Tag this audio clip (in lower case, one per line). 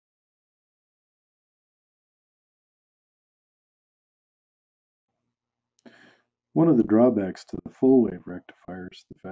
speech